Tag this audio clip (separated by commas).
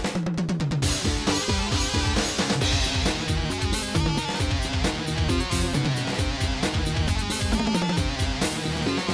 Rhythm and blues, Blues, Exciting music, Music